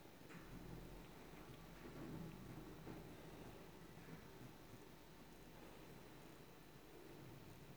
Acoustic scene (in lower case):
elevator